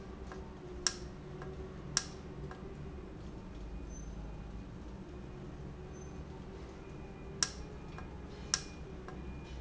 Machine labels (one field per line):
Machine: valve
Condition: normal